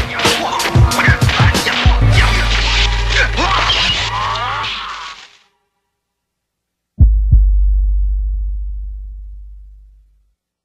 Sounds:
outside, urban or man-made
music

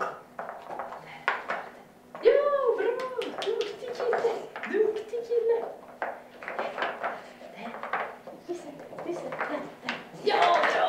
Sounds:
speech

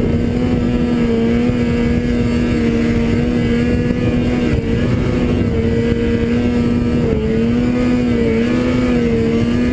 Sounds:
driving snowmobile

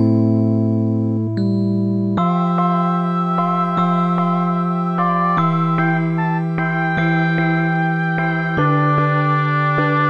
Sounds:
music

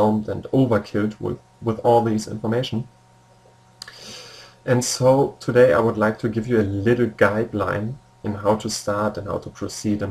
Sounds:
speech

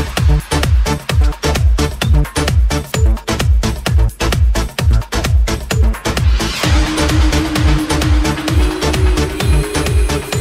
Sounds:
music

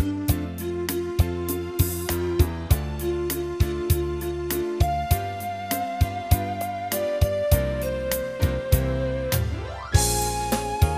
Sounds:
music

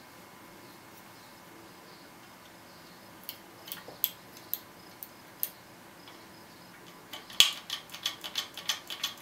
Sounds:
keys jangling

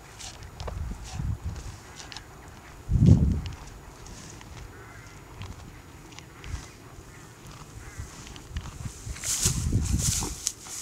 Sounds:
animal

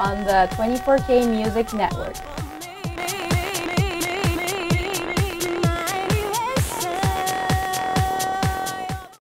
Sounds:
music
speech

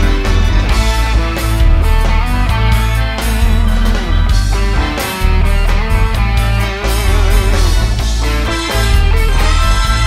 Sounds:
music

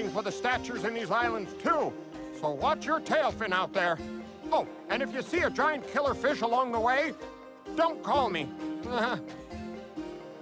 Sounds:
speech
music

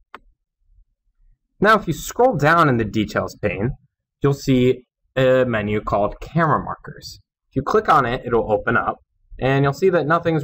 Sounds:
speech

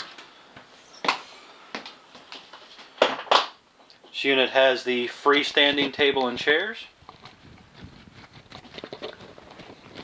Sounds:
speech
inside a small room

